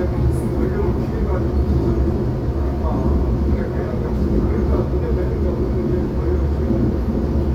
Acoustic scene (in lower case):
subway train